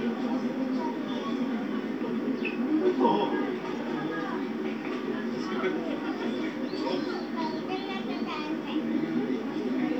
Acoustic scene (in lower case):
park